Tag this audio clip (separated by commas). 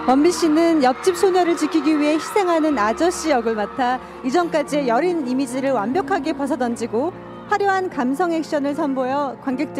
Music, Speech